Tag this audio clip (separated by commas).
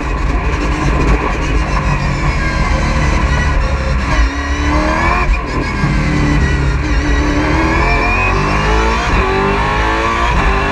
Car, Vehicle